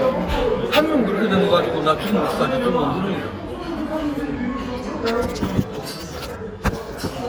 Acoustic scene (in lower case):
restaurant